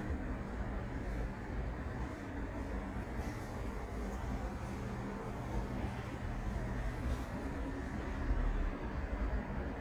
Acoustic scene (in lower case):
elevator